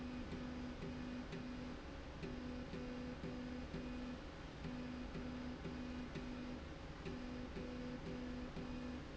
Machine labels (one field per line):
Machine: slide rail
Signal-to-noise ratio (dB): 6 dB